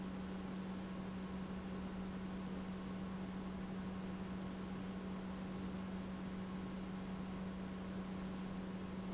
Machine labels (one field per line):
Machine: pump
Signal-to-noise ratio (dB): 6 dB